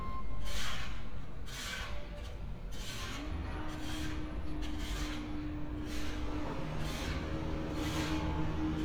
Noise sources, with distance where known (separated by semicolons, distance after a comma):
large-sounding engine; small or medium rotating saw